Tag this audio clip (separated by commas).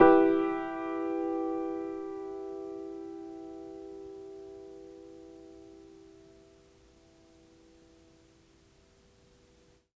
Musical instrument, Keyboard (musical), Music, Piano